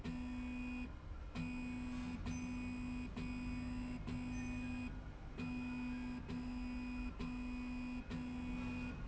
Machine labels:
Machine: slide rail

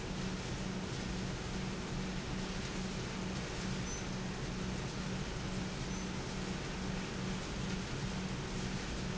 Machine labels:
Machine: pump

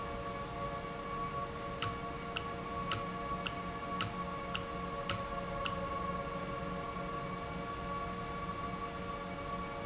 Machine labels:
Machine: valve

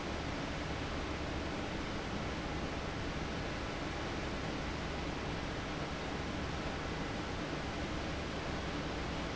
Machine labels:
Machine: fan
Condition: abnormal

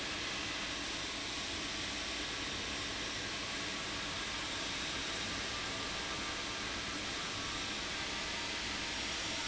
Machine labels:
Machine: fan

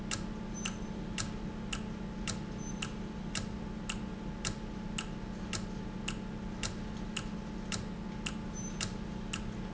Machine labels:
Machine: valve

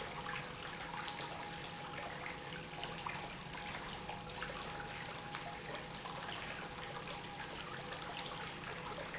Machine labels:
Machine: pump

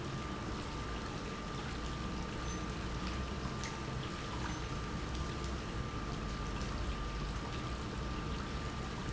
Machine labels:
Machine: pump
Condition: normal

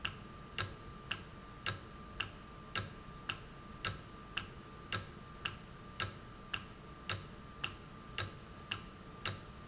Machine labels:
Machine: valve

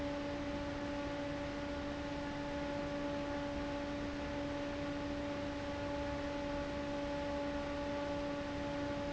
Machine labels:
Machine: fan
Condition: abnormal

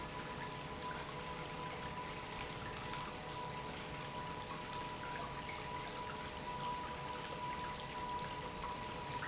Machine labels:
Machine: pump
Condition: normal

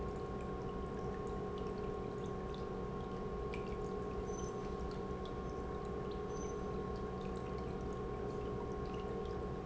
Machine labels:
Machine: pump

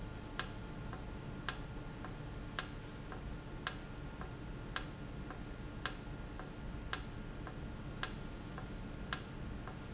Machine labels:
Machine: valve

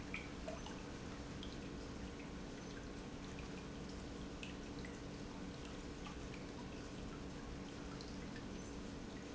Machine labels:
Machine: pump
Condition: normal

